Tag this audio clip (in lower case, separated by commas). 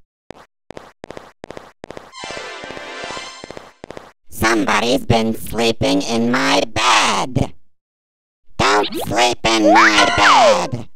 speech, music, music for children, inside a small room